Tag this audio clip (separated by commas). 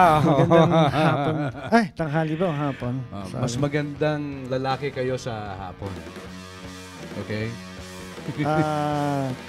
Speech, Music, Background music